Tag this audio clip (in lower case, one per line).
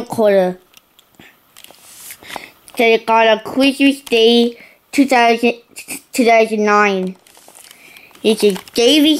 speech